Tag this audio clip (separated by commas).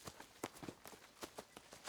Run